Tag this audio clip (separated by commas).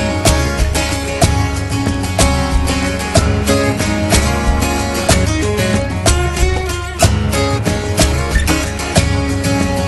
Guitar, Music, Musical instrument, Plucked string instrument, Strum, Acoustic guitar